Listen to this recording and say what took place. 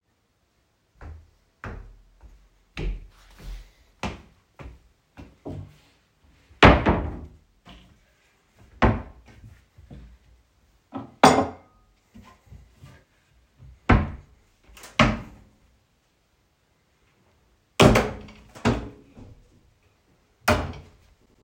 I am walking and then opening and closing wardrobes around the kitchen